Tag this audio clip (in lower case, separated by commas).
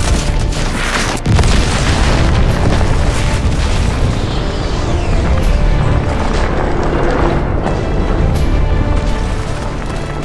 boom, music